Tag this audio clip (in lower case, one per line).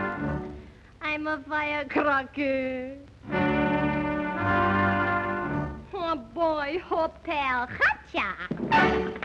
music
singing